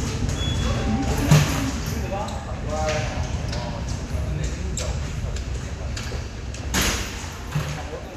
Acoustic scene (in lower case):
subway station